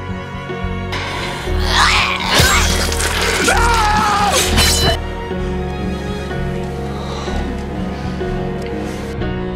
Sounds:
inside a small room, Music

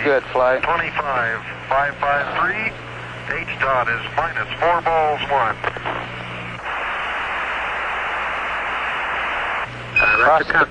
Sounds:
Radio

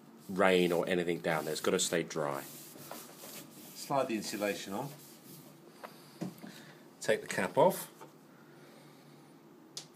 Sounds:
Speech

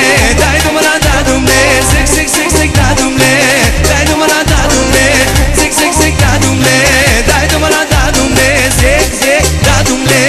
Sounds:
Music

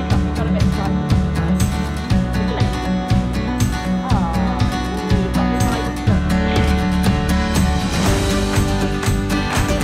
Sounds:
Speech, Music

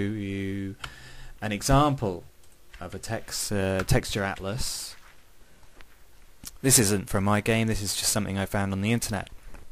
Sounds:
Speech

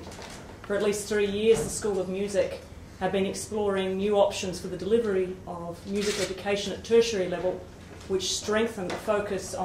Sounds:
Speech

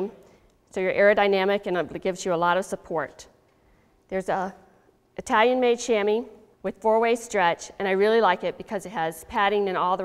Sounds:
Speech

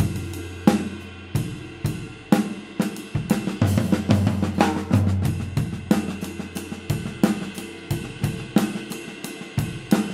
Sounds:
Music

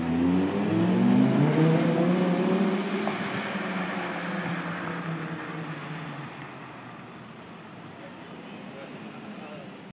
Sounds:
Speech

